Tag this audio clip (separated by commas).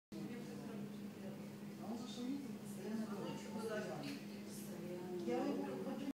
Speech